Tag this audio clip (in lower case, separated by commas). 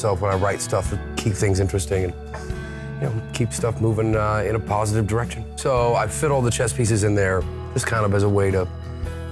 music, speech